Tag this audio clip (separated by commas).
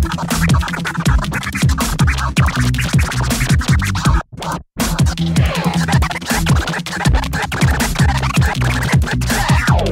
Sampler, Music, Electronic music, Scratching (performance technique)